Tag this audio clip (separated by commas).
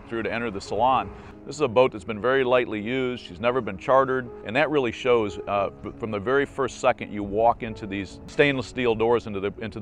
Speech, Music